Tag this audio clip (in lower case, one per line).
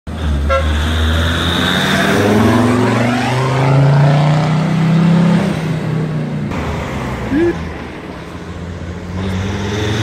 vehicle
honking